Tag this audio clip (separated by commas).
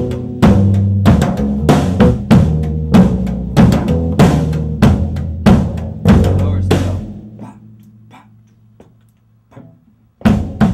Music, Speech, inside a large room or hall, Musical instrument